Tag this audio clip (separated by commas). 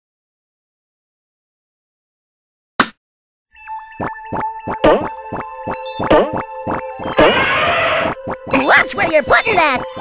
Speech, Music